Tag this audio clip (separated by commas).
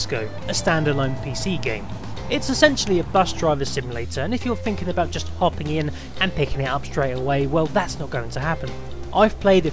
Music, Speech